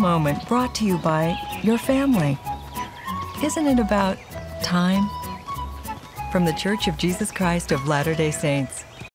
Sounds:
Music, Speech

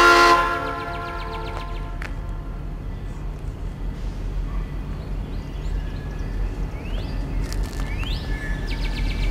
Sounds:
Train, outside, rural or natural, Vehicle

